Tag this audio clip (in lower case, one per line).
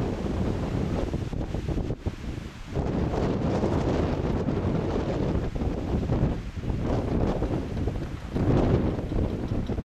wind noise
wind noise (microphone)